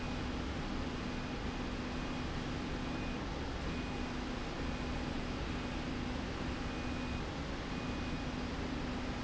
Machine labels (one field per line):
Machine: slide rail